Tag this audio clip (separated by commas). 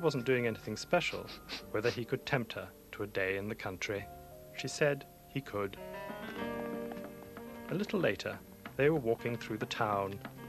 Music, Speech